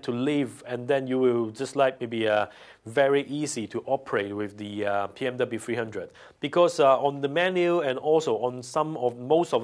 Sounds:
speech

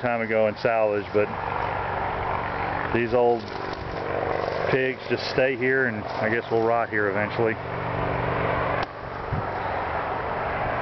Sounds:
speech

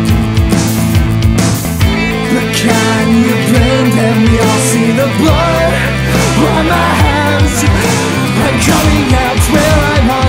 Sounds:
grunge

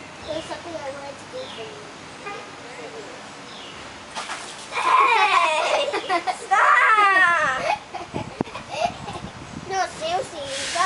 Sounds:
speech

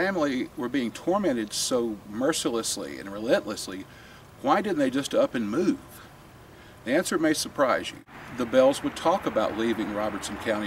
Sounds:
speech

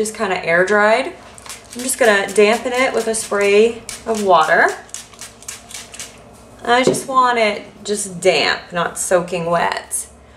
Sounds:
speech

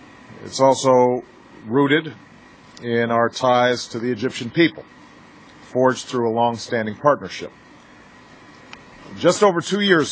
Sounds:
speech, male speech, narration

